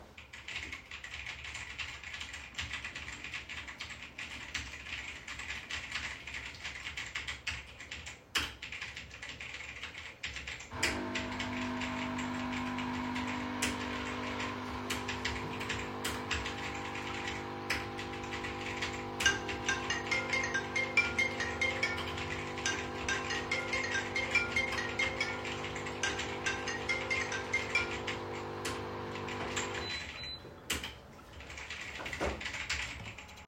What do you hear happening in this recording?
Throughout the whole recording I was typing on the keyboard, suddenly the coffee machine turned on and while it was working my phone rang. Then phone call ended and after it coffee machine stopped it's work.